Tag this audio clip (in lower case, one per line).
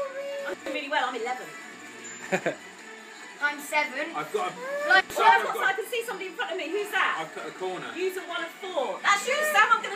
speech
music
inside a small room